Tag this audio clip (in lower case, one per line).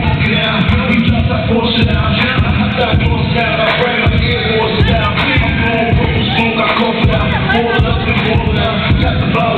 music